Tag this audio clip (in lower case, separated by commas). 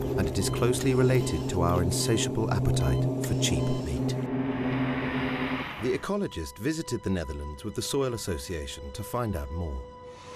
speech, music